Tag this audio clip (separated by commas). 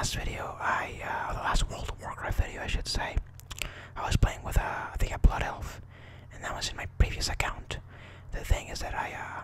Speech